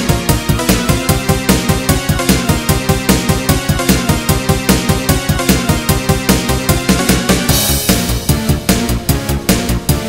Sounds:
Music

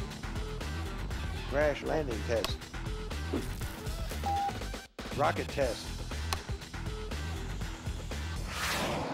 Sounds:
Speech, Music

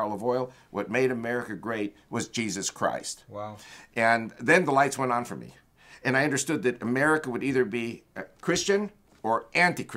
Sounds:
Speech

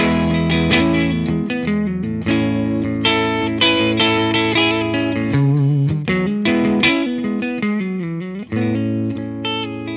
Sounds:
Guitar, Plucked string instrument, Music, Musical instrument

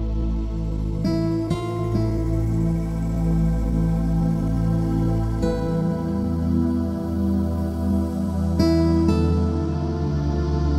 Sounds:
Music, Tender music

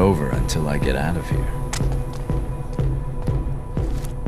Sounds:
Music, Speech

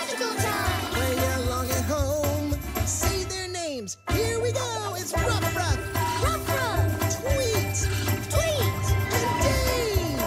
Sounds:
Music

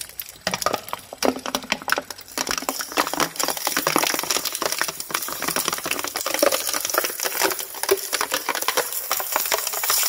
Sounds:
plastic bottle crushing

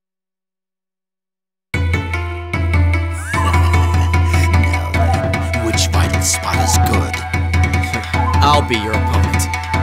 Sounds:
Video game music, Speech, Music

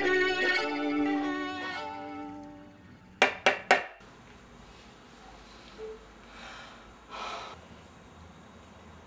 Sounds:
Music, Violin, Musical instrument

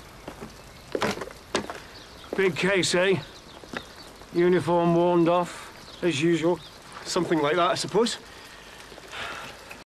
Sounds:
Speech

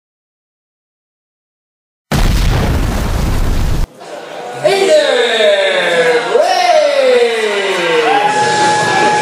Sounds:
Boom, Speech, Music

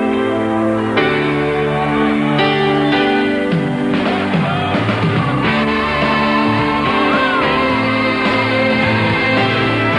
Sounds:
Music

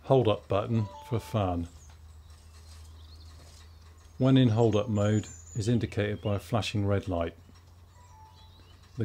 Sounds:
Speech

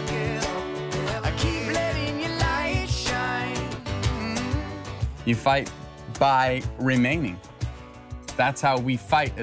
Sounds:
Music, Speech

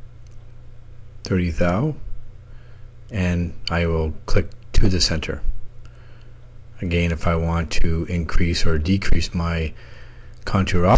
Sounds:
Speech

